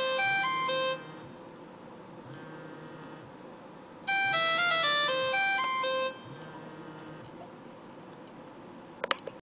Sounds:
Ringtone, Music

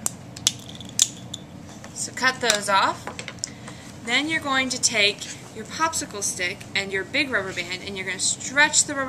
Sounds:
Speech

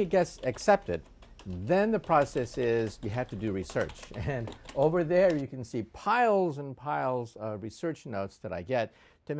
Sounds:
Speech

